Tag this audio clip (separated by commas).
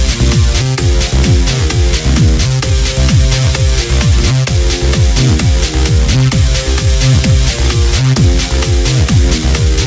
Trance music